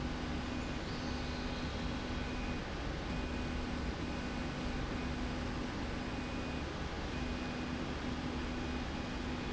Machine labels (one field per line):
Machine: slide rail